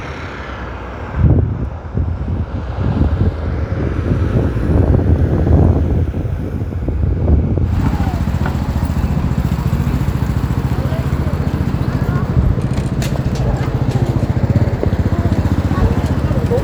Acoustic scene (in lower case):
street